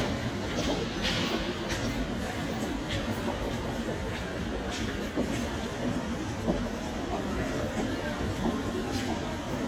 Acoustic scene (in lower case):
crowded indoor space